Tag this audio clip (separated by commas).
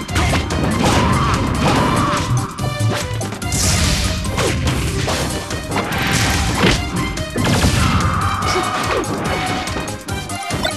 Whack